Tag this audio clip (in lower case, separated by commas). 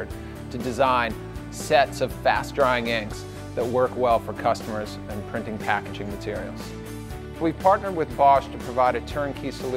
speech, music